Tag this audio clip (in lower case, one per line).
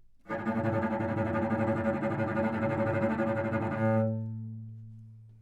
musical instrument
music
bowed string instrument